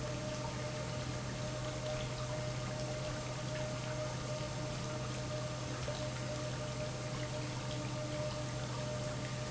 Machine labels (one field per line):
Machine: pump